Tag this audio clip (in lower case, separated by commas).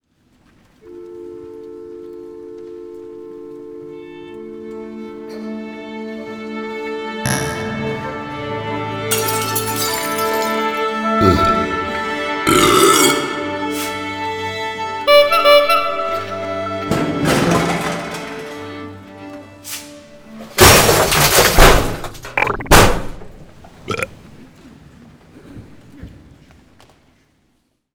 musical instrument, music